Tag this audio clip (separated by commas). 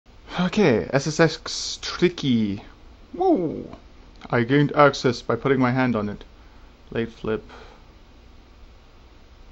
Speech, inside a small room